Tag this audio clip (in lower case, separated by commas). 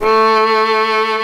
music, bowed string instrument, musical instrument